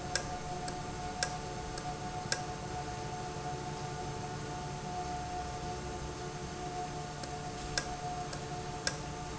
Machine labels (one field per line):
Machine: valve